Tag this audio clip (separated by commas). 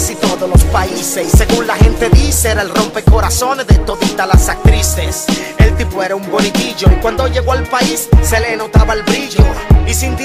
Music